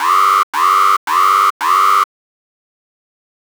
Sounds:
Alarm

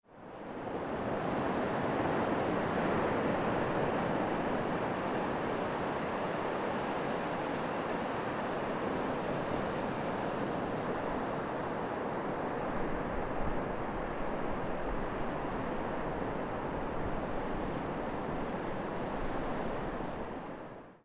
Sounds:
Ocean, Waves, Water

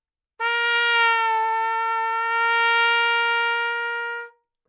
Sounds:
Trumpet, Music, Musical instrument, Brass instrument

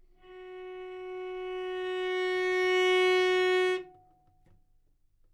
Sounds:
Musical instrument, Bowed string instrument, Music

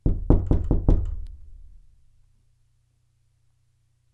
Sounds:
home sounds, Knock, Door

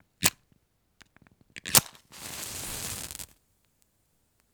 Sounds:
Fire

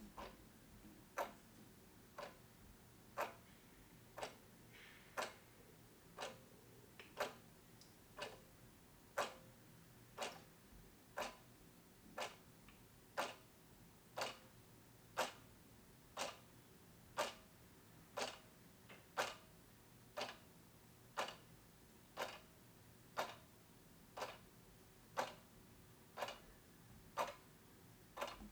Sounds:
Clock, Mechanisms

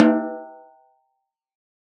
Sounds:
Music, Snare drum, Musical instrument, Percussion, Drum

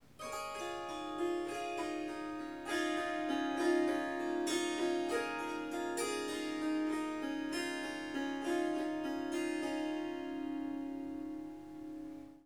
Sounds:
Music, Harp, Musical instrument

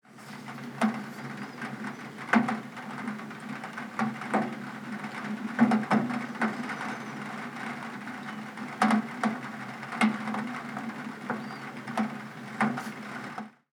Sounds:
Water, Rain

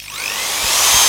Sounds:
Power tool, Tools, Drill

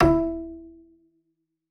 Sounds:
Musical instrument, Bowed string instrument, Music

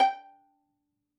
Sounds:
Music, Bowed string instrument, Musical instrument

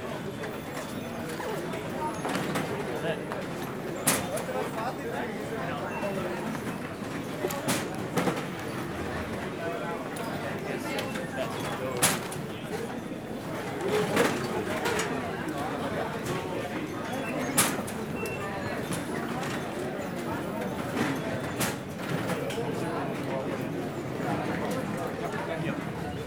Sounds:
Crowd, Human group actions

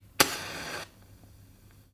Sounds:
Fire

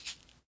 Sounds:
Rattle (instrument), Music, Percussion, Musical instrument

